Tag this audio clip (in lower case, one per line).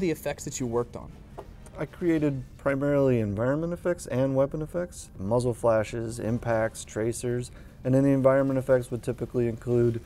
speech